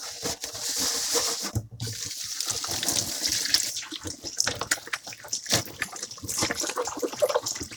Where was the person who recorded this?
in a kitchen